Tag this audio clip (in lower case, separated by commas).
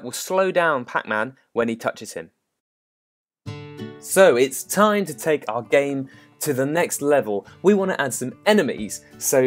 speech, music